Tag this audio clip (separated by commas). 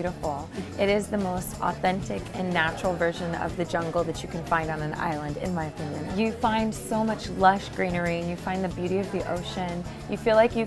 Speech, Music